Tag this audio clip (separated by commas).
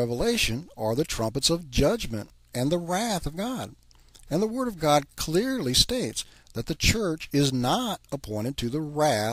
Speech